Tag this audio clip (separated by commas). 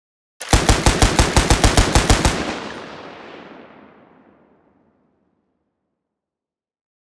Gunshot, Explosion